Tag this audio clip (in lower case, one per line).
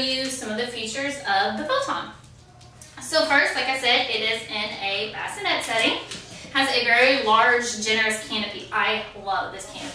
speech